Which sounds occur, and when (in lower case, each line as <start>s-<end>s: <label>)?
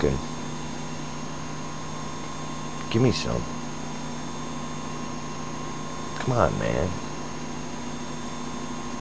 0.0s-0.2s: male speech
0.0s-9.0s: mechanisms
2.7s-3.4s: male speech
6.1s-6.9s: male speech